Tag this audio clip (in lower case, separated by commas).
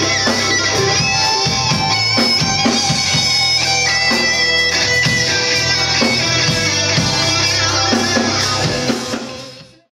guitar, musical instrument, music